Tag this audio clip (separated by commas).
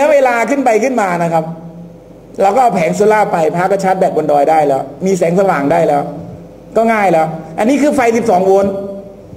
Narration, Speech